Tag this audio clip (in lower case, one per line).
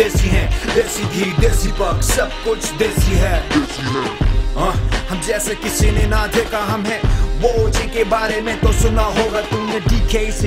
music